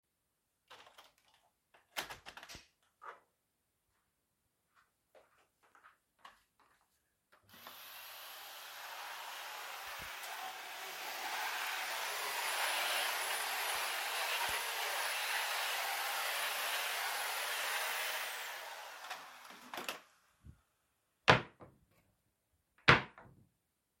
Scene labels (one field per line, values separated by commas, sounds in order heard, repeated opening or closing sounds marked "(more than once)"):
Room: bedroom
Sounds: window, footsteps, vacuum cleaner, wardrobe or drawer (more than once)